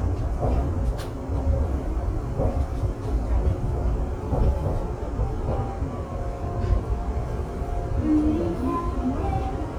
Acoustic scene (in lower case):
subway train